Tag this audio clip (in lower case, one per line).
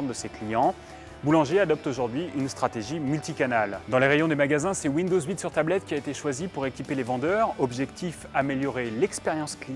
music
speech